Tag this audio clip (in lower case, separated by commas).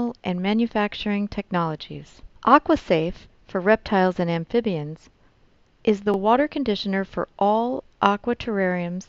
speech